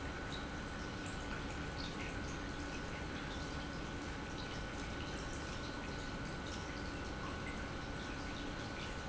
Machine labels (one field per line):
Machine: pump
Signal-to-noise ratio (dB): 0 dB